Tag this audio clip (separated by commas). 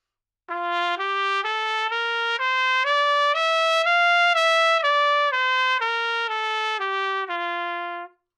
Musical instrument, Brass instrument, Music, Trumpet